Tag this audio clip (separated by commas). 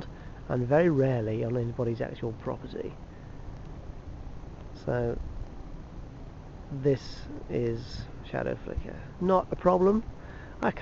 Speech